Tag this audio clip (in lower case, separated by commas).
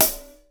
music, musical instrument, hi-hat, cymbal, percussion